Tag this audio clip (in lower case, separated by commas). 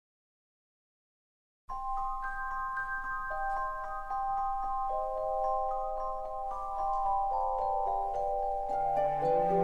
music, silence